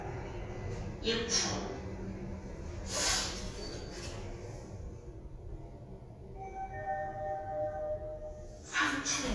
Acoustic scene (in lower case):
elevator